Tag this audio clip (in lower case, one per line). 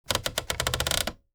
typewriter
typing
domestic sounds